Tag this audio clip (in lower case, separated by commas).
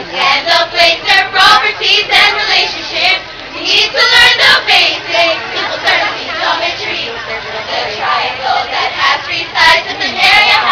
music